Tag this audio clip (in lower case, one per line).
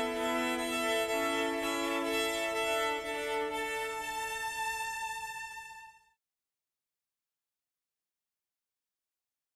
musical instrument
music
violin